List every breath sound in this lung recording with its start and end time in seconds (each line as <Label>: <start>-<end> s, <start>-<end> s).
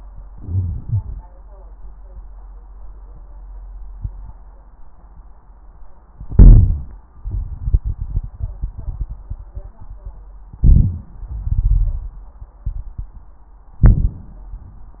Inhalation: 0.26-1.21 s, 6.13-6.94 s, 10.56-11.20 s, 13.82-14.46 s
Exhalation: 7.11-10.20 s, 11.27-13.40 s
Crackles: 0.26-1.21 s, 6.13-6.94 s, 7.11-10.20 s, 10.56-11.20 s, 11.27-13.40 s, 13.82-14.46 s